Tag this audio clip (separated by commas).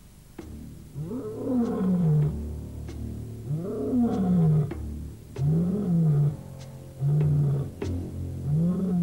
outside, rural or natural, Music